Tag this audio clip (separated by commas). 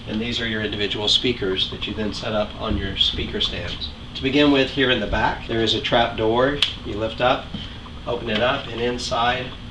Speech